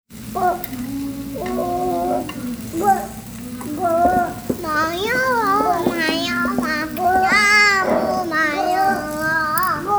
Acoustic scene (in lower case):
restaurant